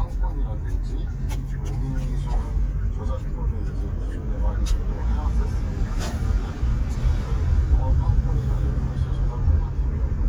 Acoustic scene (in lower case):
car